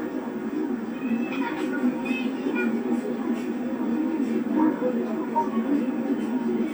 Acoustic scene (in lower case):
park